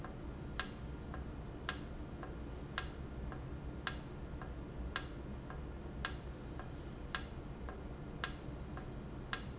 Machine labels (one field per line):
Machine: valve